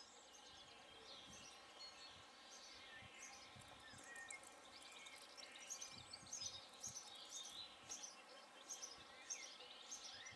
Some birds tweeting